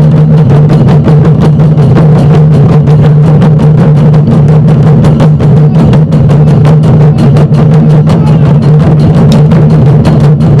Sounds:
Speech, outside, urban or man-made, Music

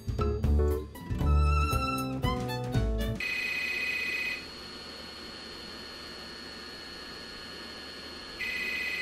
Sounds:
Music

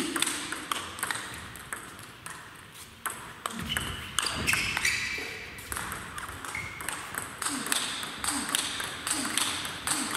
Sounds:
playing table tennis

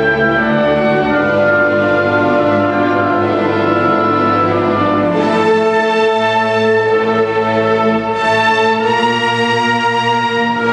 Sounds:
Musical instrument, Violin, Music

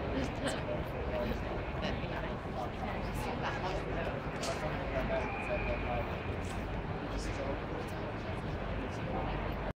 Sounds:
Speech

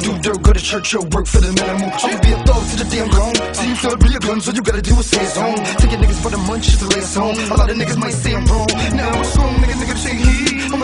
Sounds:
Music

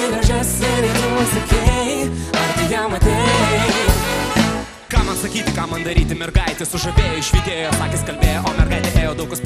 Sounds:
Soundtrack music, Music

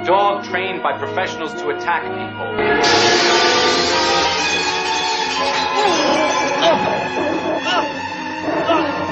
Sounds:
Music, Animal, Speech, pets

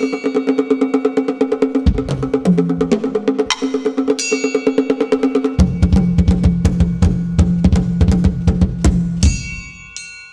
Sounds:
Music, Wood block, Drum, Musical instrument, Drum kit, Percussion

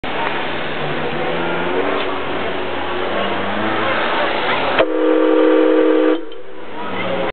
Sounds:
car horn, Vehicle, outside, urban or man-made

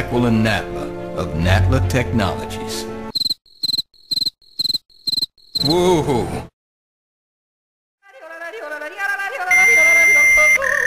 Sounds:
inside a large room or hall, Music, Speech

